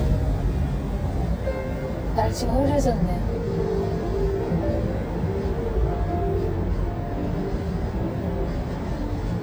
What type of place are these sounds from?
car